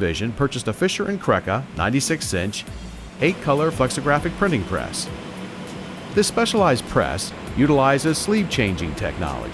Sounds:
speech, inside a large room or hall, music

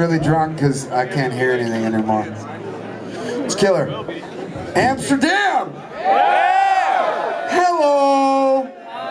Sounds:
music, speech

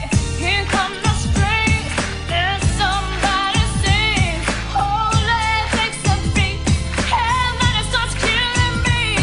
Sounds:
music, female singing

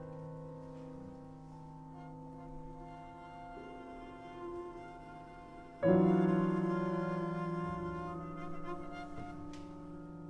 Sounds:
double bass, musical instrument, music, classical music, piano, bowed string instrument

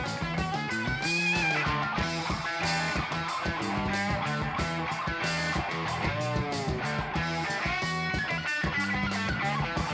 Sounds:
music

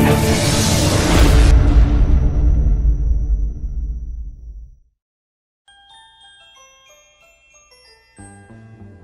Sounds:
glockenspiel

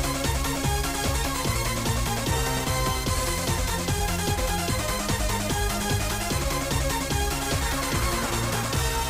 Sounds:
music

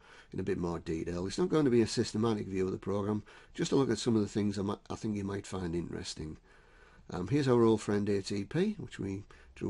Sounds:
speech

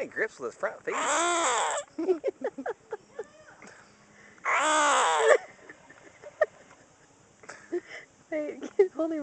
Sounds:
frog

